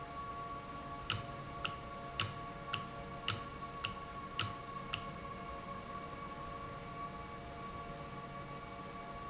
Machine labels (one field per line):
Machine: valve